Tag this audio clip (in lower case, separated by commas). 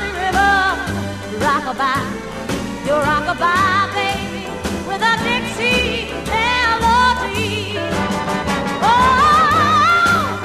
singing, music